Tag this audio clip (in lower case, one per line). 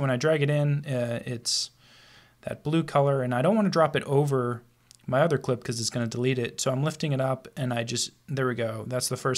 speech